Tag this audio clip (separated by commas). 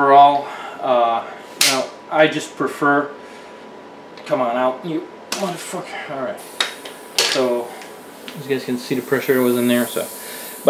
Speech